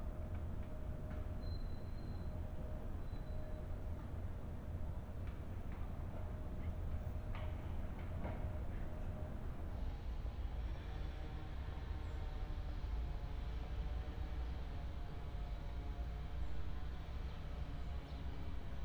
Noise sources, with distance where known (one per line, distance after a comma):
background noise